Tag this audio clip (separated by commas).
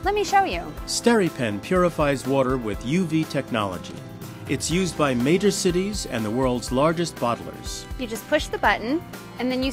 Speech, Music